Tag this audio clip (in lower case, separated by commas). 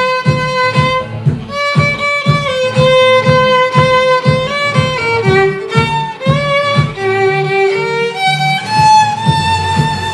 violin, musical instrument, music